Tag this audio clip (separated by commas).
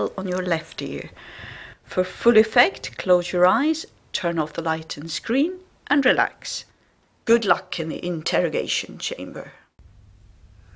Speech